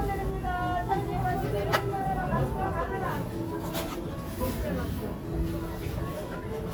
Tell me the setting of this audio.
crowded indoor space